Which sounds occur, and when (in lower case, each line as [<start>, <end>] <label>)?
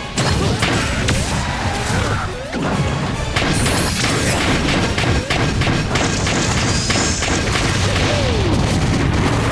[0.00, 4.65] sound effect
[0.00, 9.51] music
[0.00, 9.51] video game sound
[0.15, 0.31] machine gun
[0.57, 0.98] machine gun
[3.30, 7.47] machine gun
[6.54, 7.43] sound effect
[8.45, 9.51] explosion